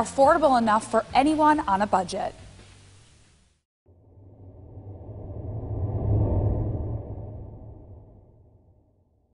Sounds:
Speech, Music

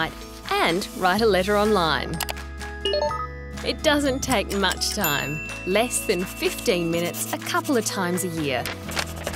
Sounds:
Writing, Speech, Music

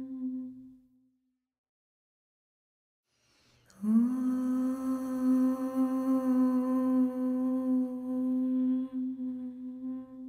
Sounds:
Mantra

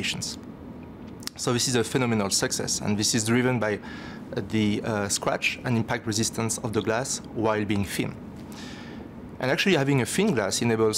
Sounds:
Speech

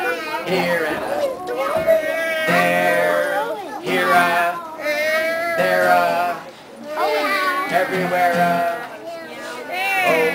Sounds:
Music, Male singing

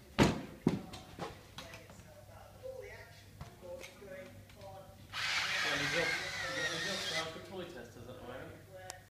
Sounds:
Speech

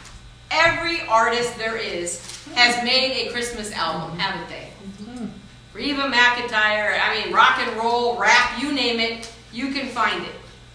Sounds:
Speech

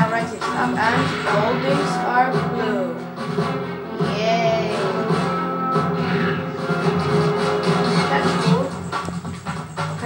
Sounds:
Music, Speech

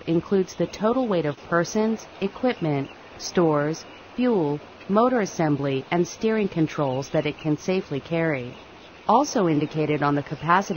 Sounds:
Speech

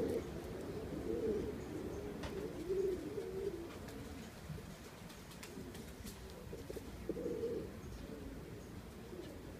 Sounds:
dove, Bird

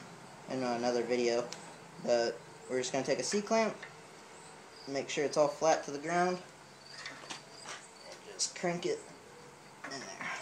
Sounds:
inside a large room or hall, Speech

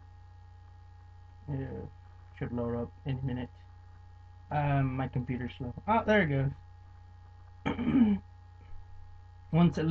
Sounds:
Speech

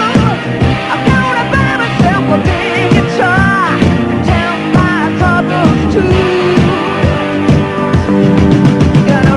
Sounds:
Rock and roll, Music

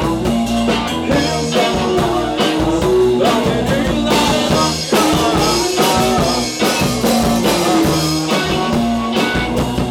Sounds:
Grunge, Punk rock, Music

